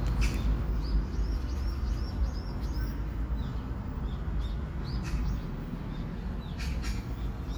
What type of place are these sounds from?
park